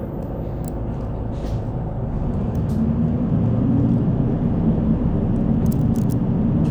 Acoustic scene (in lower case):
bus